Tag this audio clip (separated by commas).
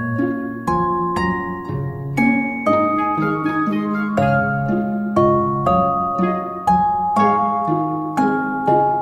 Glockenspiel, Music